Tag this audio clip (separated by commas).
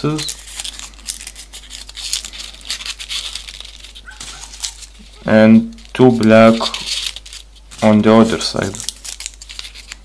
Speech